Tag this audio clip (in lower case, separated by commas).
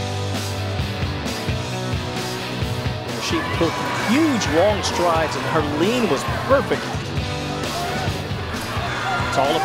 music, outside, urban or man-made, speech